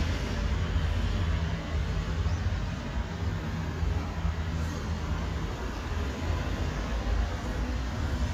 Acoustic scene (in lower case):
residential area